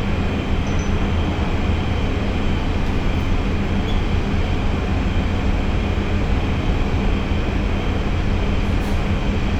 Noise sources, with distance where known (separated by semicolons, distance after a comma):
large-sounding engine, near